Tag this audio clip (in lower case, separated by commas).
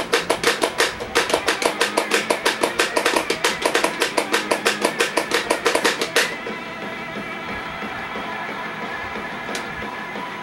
musical instrument, music, guitar